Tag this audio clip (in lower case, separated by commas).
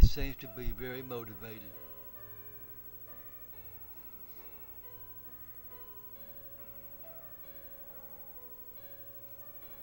music, speech